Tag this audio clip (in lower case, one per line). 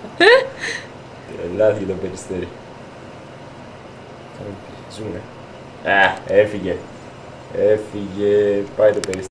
speech